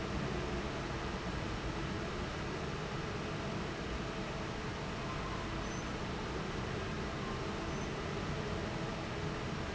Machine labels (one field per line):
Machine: fan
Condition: normal